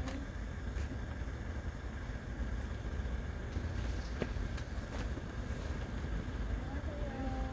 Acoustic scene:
residential area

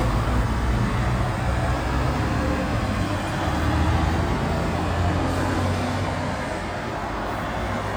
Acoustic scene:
street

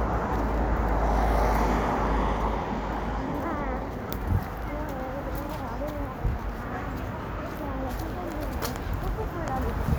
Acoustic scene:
street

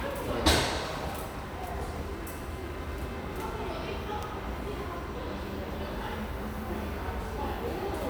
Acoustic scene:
subway station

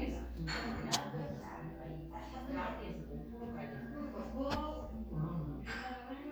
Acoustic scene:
crowded indoor space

